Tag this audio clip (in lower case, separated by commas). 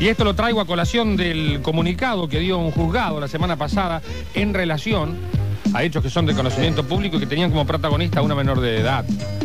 speech, music